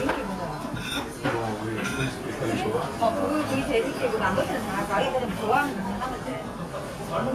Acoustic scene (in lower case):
restaurant